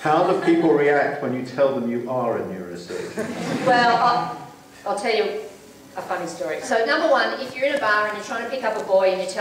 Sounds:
man speaking, Speech

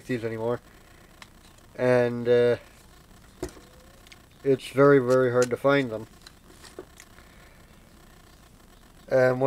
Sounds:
Speech

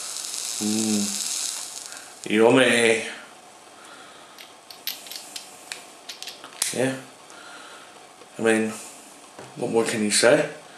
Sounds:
Sizzle

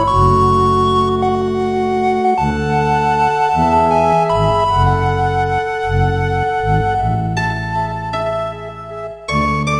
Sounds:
Music

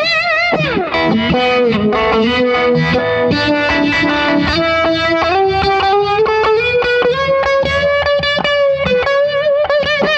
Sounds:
Plucked string instrument, Distortion, Music, Musical instrument, Effects unit, Guitar

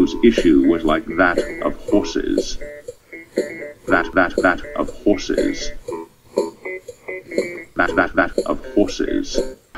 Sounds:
Music, Speech

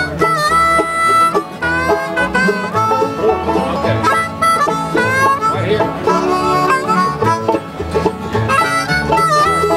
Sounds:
Speech, Music

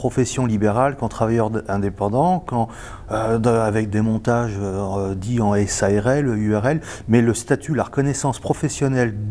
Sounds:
Speech

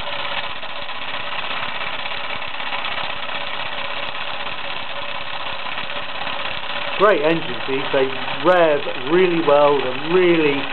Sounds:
Engine, Speech

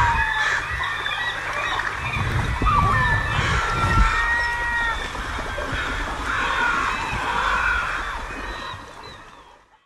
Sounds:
pets, Animal

